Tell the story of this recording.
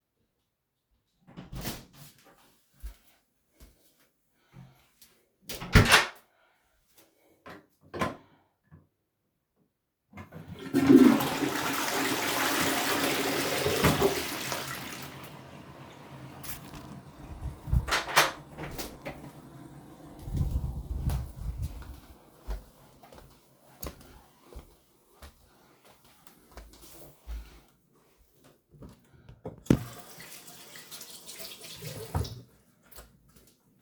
Flushed toilet, then went to the bathroom to wash hands and dry them with a towel